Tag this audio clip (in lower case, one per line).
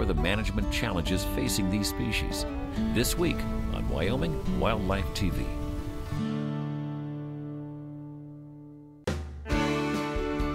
speech
music